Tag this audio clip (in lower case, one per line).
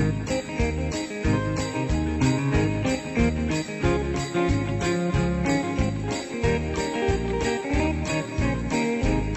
jingle bell
music